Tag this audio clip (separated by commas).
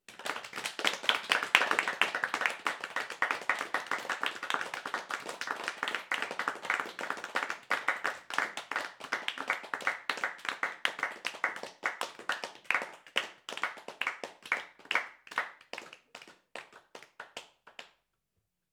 Applause, Human group actions